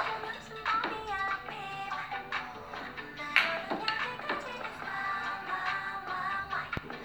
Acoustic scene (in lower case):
cafe